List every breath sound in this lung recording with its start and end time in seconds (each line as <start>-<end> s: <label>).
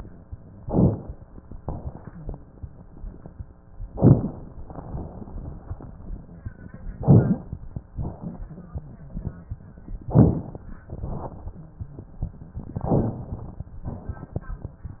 0.61-1.08 s: inhalation
0.61-1.08 s: crackles
1.59-2.07 s: exhalation
1.59-2.07 s: crackles
3.97-4.44 s: inhalation
3.97-4.44 s: crackles
4.65-5.12 s: exhalation
6.98-7.46 s: inhalation
6.98-7.46 s: crackles
7.99-8.46 s: exhalation
10.17-10.65 s: inhalation
10.17-10.65 s: crackles
10.97-11.57 s: exhalation
12.90-13.38 s: inhalation
12.90-13.38 s: crackles
13.87-14.48 s: exhalation